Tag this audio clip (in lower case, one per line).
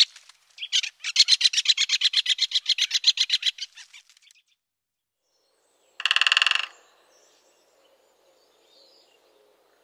woodpecker pecking tree